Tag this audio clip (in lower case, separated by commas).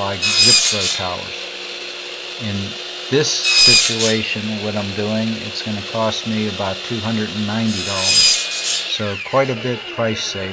speech, inside a large room or hall